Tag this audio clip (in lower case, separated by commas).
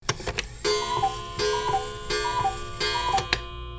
mechanisms, clock